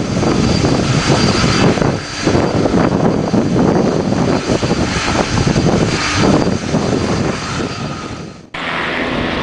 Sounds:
airplane, aircraft, vehicle

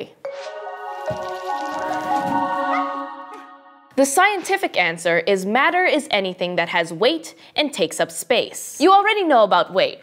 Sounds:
music, speech

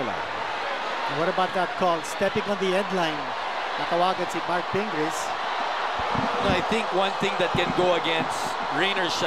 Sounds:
speech

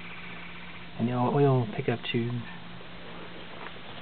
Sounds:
speech

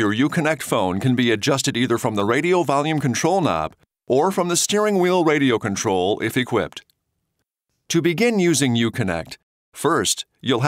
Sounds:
speech

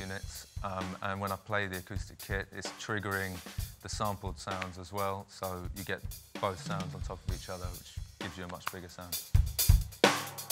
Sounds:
music, speech

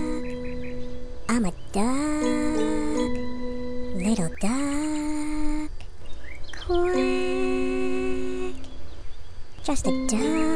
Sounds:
speech, music

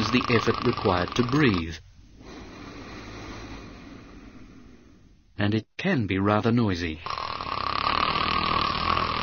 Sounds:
breathing, speech, snoring

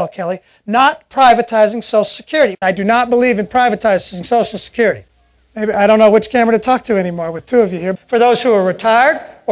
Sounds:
speech

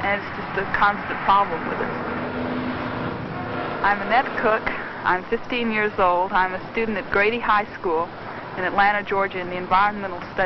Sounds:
speech

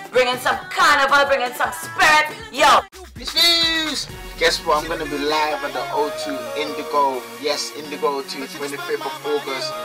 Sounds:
music, speech, funk

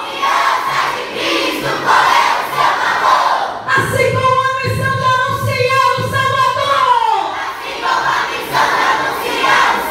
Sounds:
children shouting

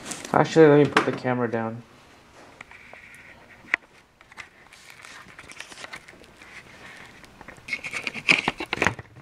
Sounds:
speech

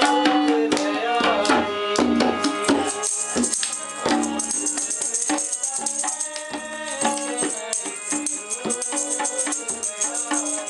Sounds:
playing tabla

